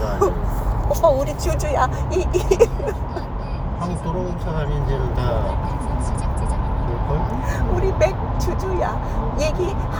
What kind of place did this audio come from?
car